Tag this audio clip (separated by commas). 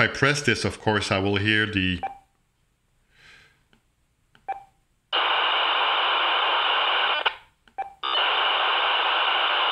police radio chatter